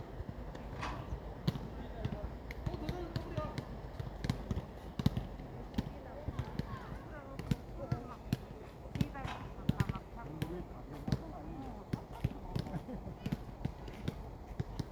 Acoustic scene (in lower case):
park